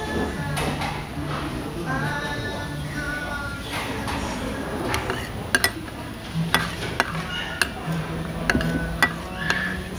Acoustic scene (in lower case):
restaurant